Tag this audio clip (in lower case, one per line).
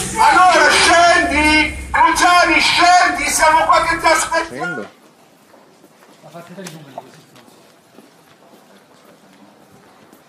speech